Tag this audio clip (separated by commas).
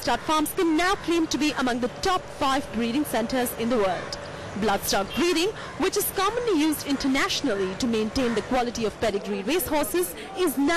Speech, Animal